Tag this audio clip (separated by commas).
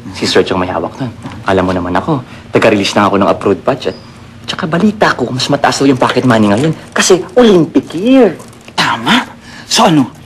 Speech